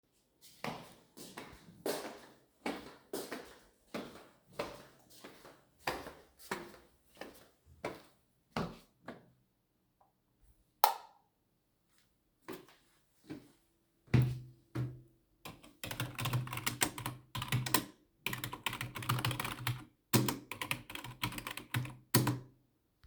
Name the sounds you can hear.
footsteps, light switch, keyboard typing